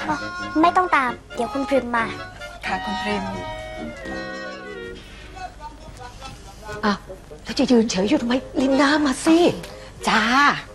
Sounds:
speech, music

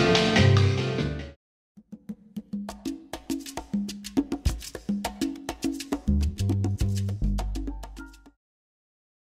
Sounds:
music

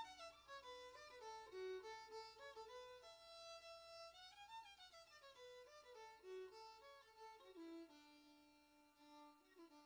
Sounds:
fiddle, musical instrument, music

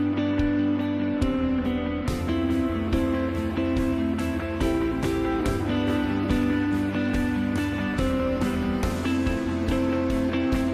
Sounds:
guitar, plucked string instrument, musical instrument, electric guitar, music

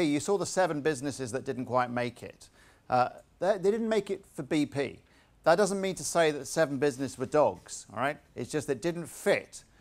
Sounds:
speech

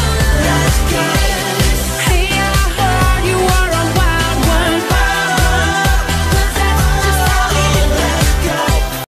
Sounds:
happy music, music

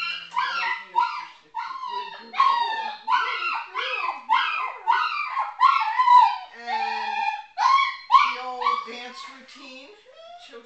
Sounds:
pets, bark, animal, dog

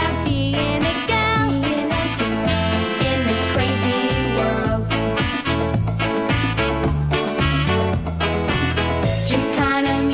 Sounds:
music, singing

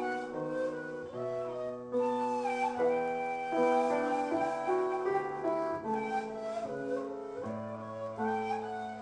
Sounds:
music

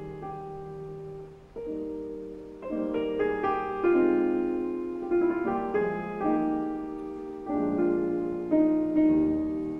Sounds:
music, musical instrument

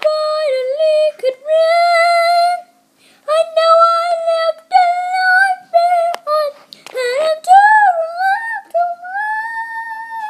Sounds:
singing

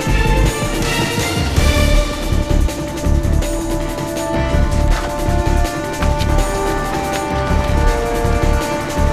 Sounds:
sampler, music

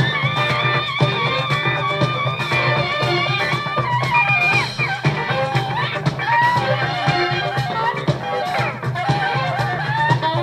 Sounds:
music, saxophone

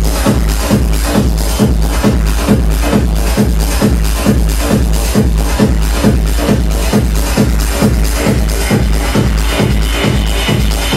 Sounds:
music, techno

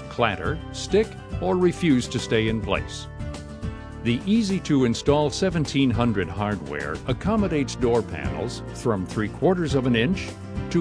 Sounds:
speech, music

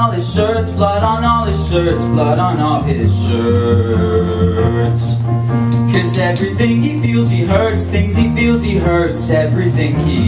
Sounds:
music, rock and roll

